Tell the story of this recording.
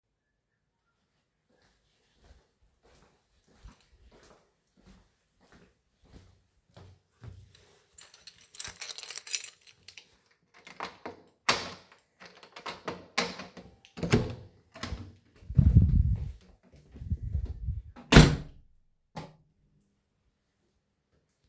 I was walking, looking at my phone in my hand, approached a door, took a keychain out of my pocket, opened and closed the door, turned the light switch on.